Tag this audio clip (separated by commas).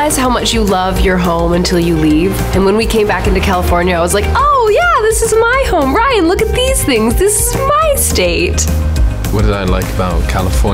Music, Speech